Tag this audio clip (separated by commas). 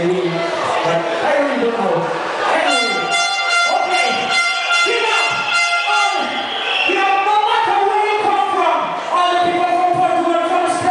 Speech, Music, Cheering